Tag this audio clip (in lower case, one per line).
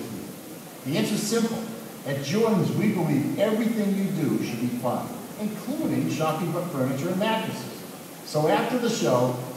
speech